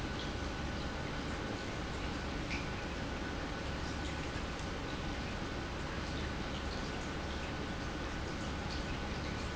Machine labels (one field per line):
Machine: pump